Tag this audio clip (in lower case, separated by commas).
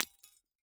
shatter, glass